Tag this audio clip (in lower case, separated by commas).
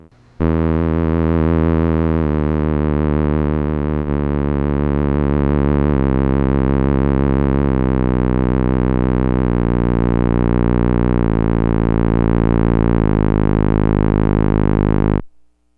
musical instrument, music